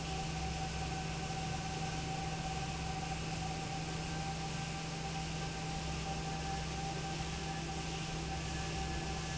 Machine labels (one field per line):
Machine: fan